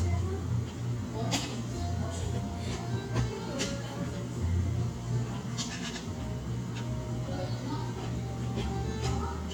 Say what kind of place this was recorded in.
cafe